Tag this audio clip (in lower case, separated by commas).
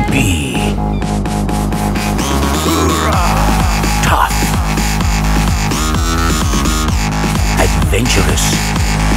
music, speech